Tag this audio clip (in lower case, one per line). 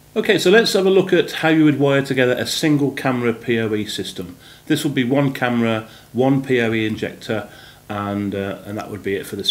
speech